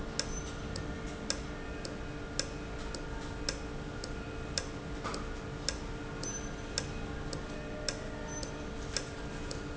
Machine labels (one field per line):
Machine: valve